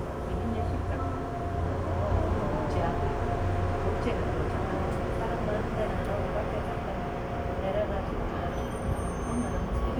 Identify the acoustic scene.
subway train